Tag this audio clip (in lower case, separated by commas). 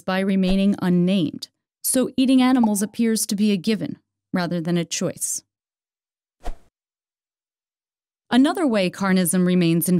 speech